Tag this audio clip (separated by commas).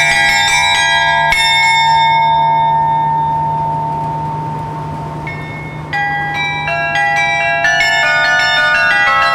wind chime